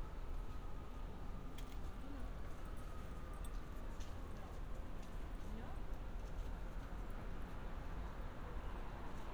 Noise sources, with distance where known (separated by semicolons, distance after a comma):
person or small group talking, far